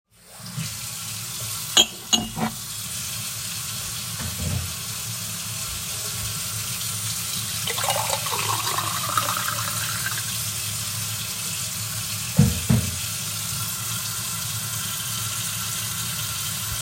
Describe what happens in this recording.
I opened the water. I took a galss and poured a juice into the glass while the water was still open.